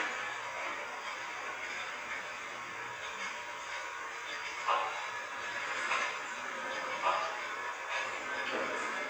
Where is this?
on a subway train